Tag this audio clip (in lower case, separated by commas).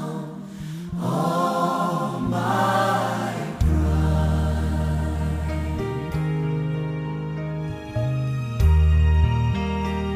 sad music, music, tender music